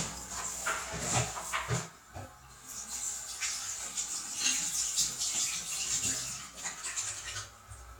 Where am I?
in a restroom